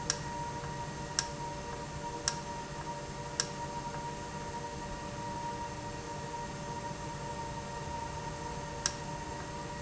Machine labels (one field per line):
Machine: valve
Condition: normal